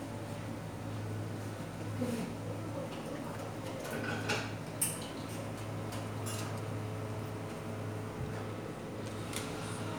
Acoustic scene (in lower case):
cafe